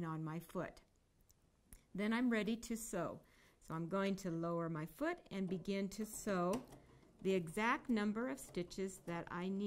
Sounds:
speech, sewing machine

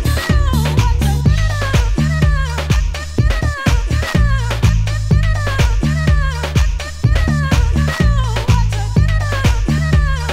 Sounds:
disco, music, electronic music, house music

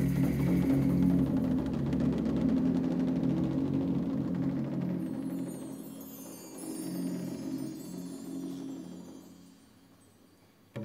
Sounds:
music, percussion

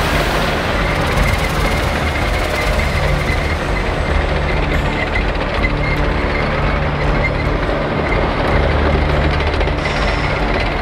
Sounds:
music, vehicle

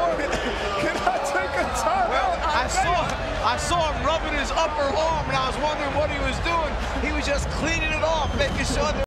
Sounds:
speech

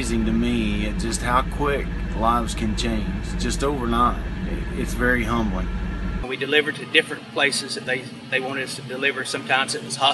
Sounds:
speech, vehicle

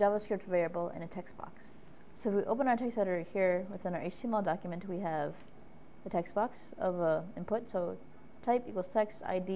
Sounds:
speech, inside a small room

